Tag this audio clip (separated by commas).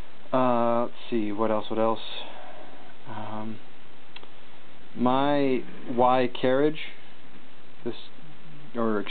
inside a small room, Speech